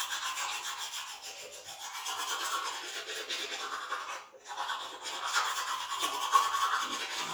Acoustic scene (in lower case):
restroom